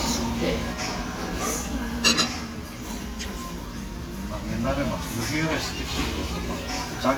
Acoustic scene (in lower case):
restaurant